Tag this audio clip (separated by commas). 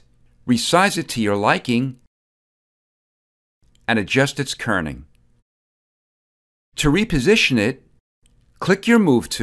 inside a small room, Speech